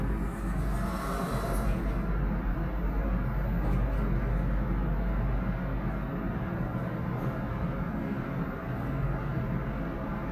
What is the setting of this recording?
elevator